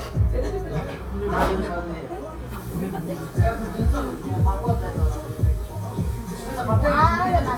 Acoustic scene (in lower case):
cafe